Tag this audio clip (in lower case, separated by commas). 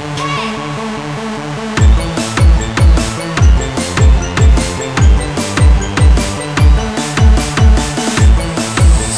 drum and bass